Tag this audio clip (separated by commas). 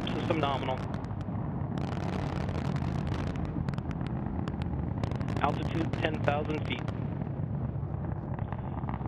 missile launch